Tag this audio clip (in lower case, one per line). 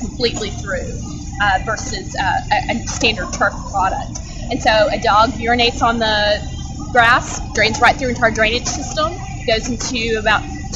speech